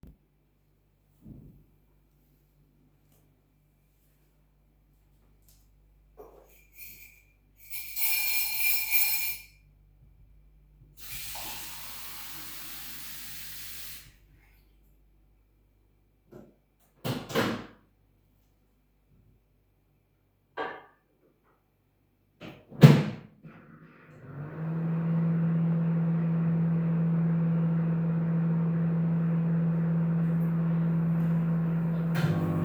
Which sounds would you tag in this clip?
cutlery and dishes, running water, microwave